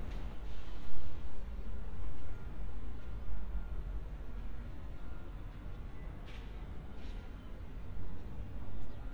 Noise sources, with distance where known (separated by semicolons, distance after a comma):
background noise